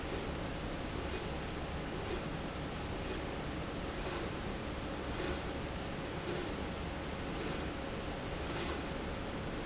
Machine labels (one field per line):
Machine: slide rail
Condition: normal